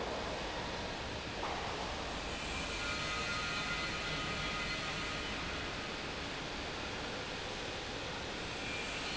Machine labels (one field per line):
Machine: pump